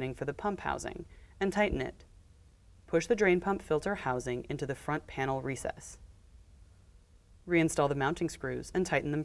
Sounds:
Speech

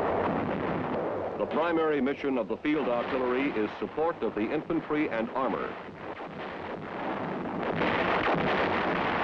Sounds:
Artillery fire, Speech

